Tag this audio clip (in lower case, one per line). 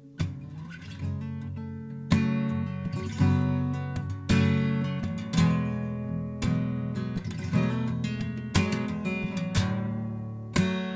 musical instrument
plucked string instrument
guitar
acoustic guitar
music
christian music